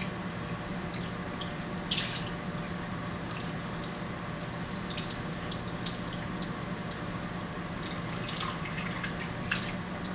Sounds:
water tap, liquid, water

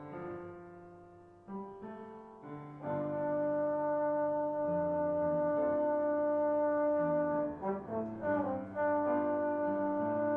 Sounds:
playing trombone, brass instrument, trombone

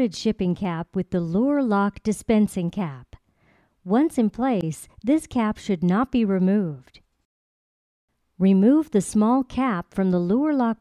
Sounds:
speech

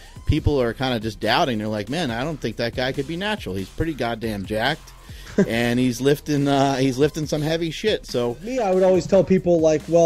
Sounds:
speech, music

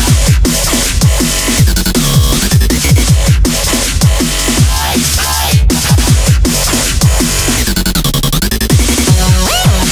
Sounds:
electronic music, dubstep, music

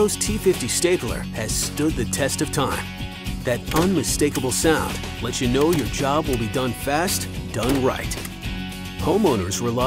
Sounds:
music, speech

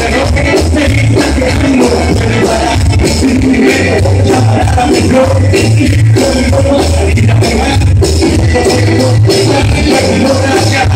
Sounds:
music, rock and roll

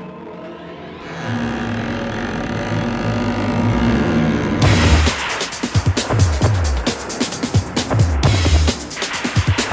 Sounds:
music, sound effect

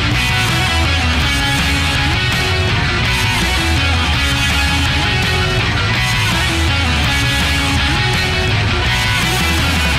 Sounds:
blues, music

